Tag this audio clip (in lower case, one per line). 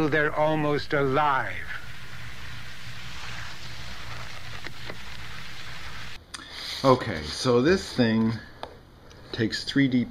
speech